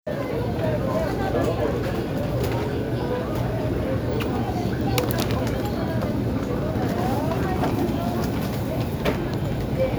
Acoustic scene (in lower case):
crowded indoor space